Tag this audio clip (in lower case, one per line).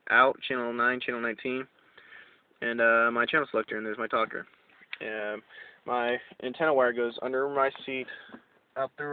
speech